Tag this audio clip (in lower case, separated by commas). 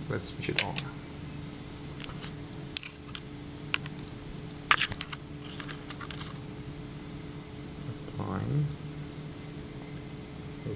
speech